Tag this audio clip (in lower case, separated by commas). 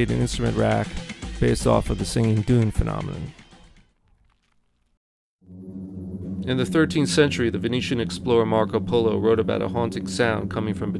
sound effect, music, speech